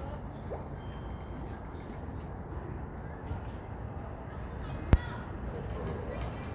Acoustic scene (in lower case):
residential area